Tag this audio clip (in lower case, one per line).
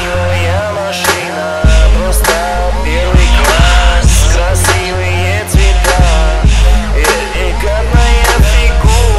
music
dubstep